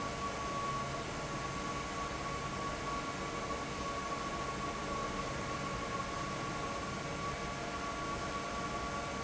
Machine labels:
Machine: fan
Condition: abnormal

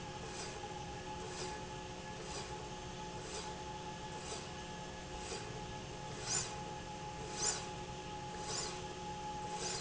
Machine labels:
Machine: slide rail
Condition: normal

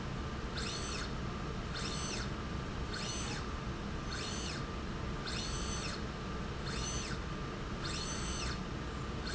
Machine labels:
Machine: slide rail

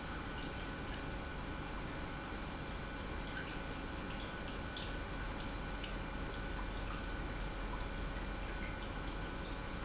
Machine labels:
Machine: pump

